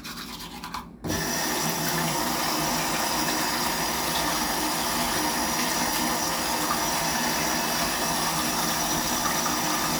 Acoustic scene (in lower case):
restroom